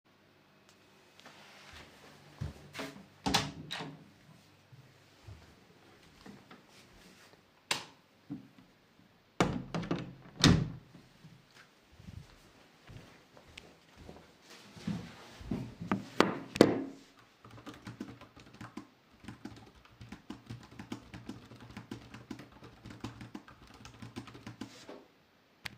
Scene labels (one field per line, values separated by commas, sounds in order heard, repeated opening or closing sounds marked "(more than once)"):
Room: office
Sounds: door (more than once), light switch, footsteps, keyboard typing